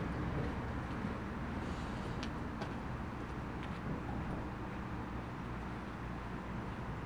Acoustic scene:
residential area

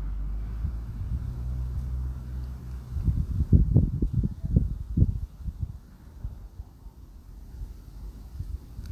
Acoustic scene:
residential area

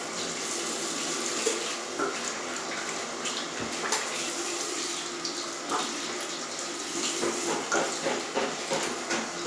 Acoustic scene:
restroom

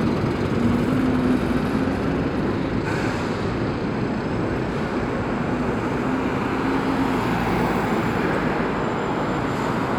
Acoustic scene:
street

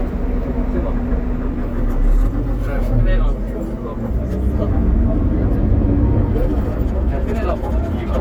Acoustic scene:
bus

